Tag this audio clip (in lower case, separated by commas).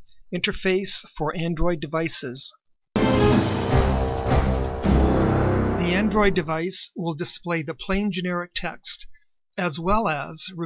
speech, music